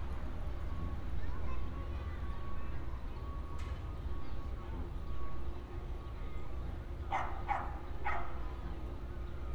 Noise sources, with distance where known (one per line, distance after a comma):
reverse beeper, far
person or small group talking, far
dog barking or whining, near